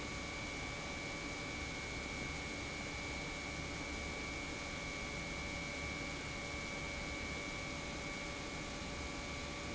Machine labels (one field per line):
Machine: pump